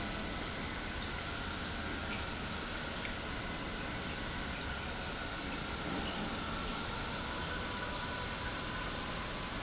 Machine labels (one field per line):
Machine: pump